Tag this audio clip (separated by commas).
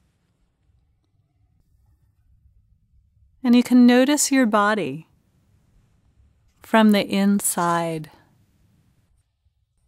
Speech